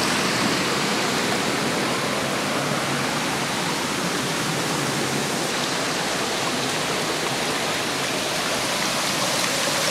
Water is streaming by